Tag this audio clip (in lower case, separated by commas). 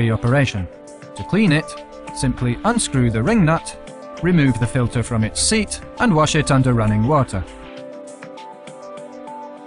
music, speech